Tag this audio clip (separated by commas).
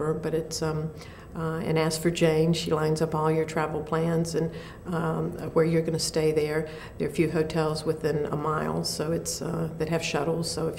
Speech, inside a small room